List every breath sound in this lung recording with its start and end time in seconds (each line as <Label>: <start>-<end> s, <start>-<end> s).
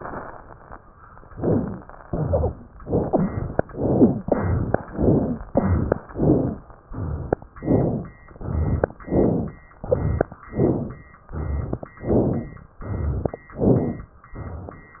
Inhalation: 1.29-1.84 s, 2.79-3.61 s, 3.70-4.21 s, 4.93-5.45 s, 6.11-6.62 s, 7.65-8.16 s, 9.11-9.62 s, 10.53-11.04 s, 12.03-12.68 s, 13.55-14.19 s
Exhalation: 2.09-2.64 s, 4.27-4.78 s, 5.54-6.05 s, 6.93-7.44 s, 8.41-8.92 s, 9.89-10.40 s, 11.38-11.90 s, 12.88-13.45 s, 14.36-14.93 s
Wheeze: 1.29-1.84 s, 2.09-2.64 s, 3.00-3.51 s, 3.70-4.21 s, 4.27-4.78 s, 4.93-5.45 s, 5.54-6.05 s, 6.11-6.62 s, 6.93-7.44 s, 7.65-8.16 s, 8.41-8.92 s, 9.89-10.40 s, 11.38-11.90 s, 12.88-13.45 s
Crackles: 9.11-9.62 s, 10.53-11.04 s, 12.03-12.68 s, 13.55-14.19 s